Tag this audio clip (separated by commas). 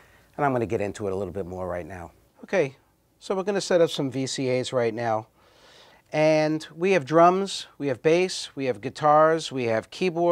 Speech